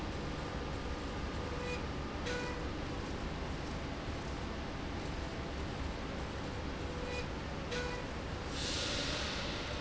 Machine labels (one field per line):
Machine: slide rail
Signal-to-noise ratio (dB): -6 dB